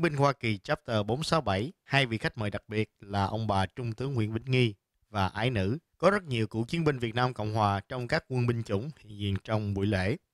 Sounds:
speech

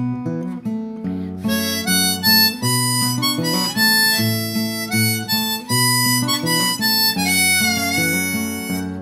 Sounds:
harmonica, music

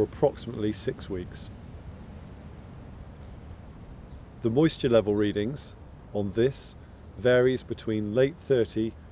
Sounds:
speech

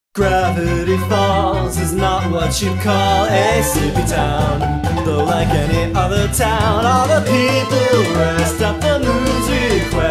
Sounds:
music

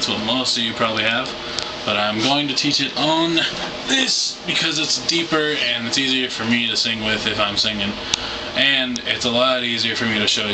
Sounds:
speech

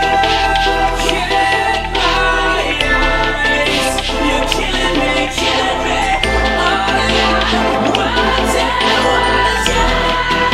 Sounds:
electronic music, music

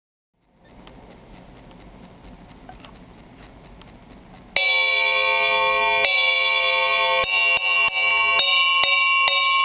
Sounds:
hi-hat, drum kit, music, cymbal, musical instrument

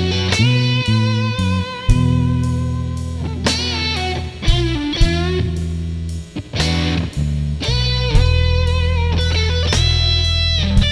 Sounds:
guitar, musical instrument, music

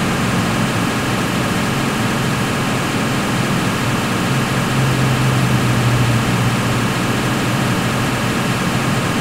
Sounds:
vehicle, car

